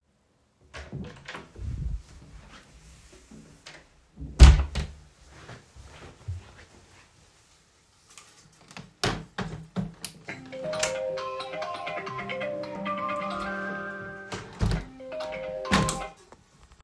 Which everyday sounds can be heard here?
door, footsteps, window, phone ringing